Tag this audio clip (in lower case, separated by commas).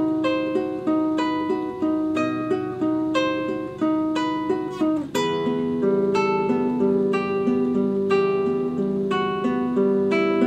music, strum, plucked string instrument, acoustic guitar, guitar, playing acoustic guitar, musical instrument